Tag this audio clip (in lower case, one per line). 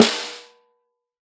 drum
snare drum
music
musical instrument
percussion